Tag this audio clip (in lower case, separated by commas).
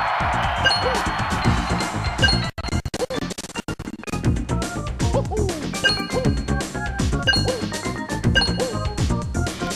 music